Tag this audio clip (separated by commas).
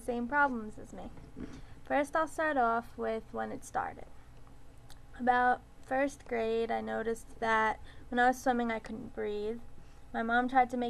Speech